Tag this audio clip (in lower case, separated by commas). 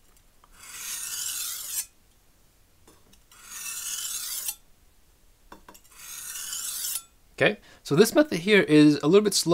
sharpen knife